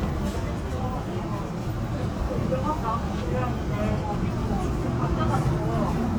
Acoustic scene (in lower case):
subway train